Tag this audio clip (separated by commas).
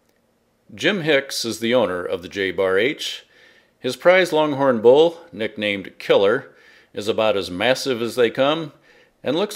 Speech